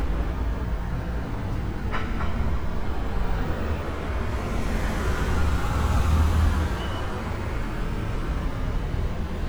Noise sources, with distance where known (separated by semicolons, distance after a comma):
engine of unclear size, near